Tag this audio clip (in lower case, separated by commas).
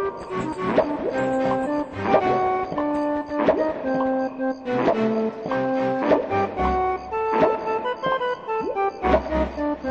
music